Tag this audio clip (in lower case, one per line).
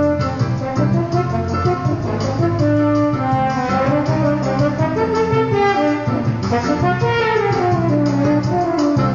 music